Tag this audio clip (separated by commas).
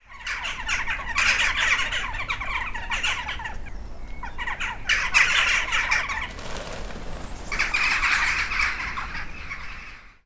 bird song, Wild animals, Bird, Animal, Crow